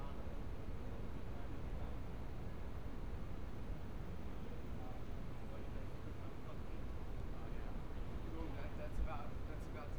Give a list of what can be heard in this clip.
person or small group talking